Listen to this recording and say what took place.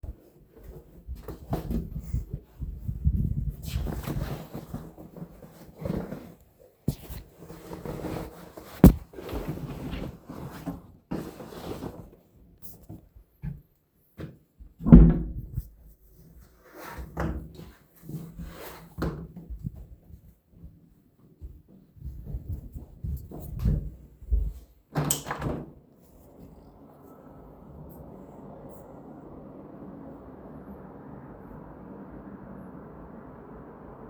I came home, opened the wardrobe and threw my jacket into it. Afterwards I closed it. Finally I went to the